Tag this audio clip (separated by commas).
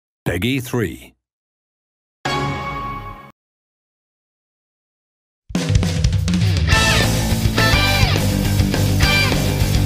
Guitar, Music, Musical instrument